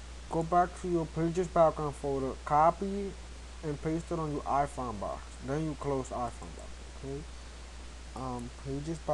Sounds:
Speech

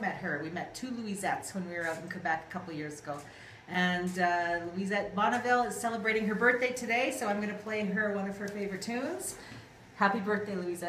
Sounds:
Speech

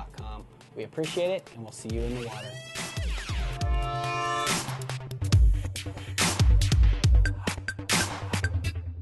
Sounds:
Music, Speech

